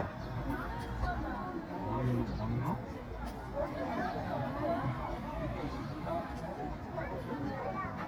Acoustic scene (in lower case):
park